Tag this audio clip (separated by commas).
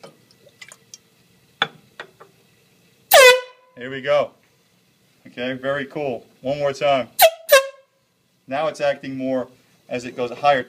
Liquid, truck horn, Water, Speech, inside a small room